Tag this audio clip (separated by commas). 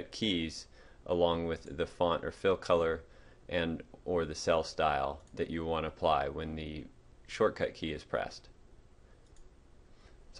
Speech